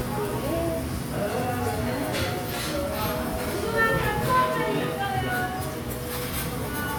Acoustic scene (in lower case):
restaurant